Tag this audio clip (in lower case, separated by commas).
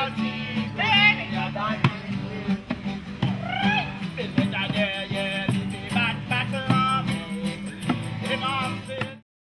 music